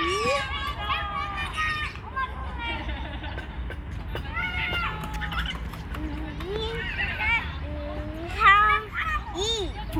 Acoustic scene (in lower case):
park